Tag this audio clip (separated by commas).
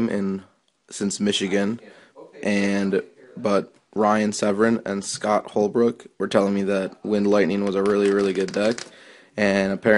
Speech